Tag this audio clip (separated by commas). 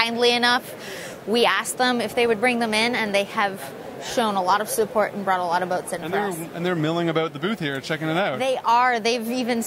Speech